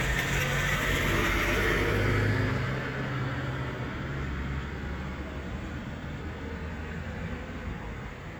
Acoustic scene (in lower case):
street